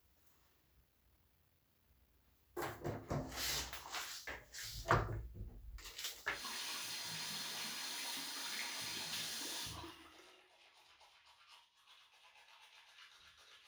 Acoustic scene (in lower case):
restroom